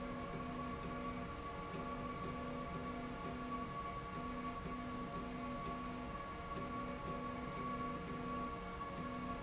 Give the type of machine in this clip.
slide rail